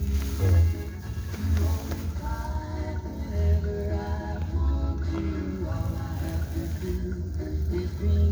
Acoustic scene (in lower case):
car